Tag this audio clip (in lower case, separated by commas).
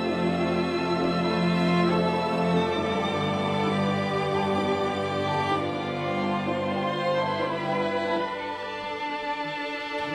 music, orchestra